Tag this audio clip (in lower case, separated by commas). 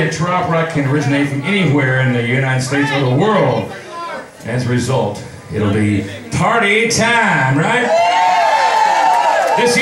speech